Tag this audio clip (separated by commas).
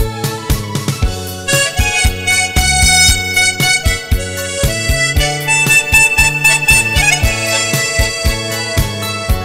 playing harmonica